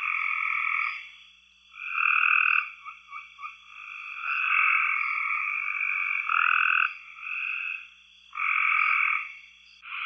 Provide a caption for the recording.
Continuous croaking with some cricket noises